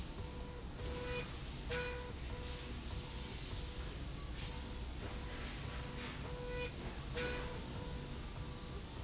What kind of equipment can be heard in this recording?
slide rail